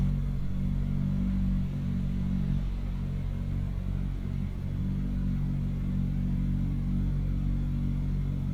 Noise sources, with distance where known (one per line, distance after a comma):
engine of unclear size, near